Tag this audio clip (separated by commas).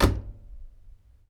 home sounds, Slam, Door